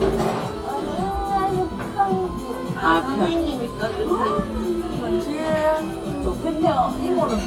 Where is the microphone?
in a restaurant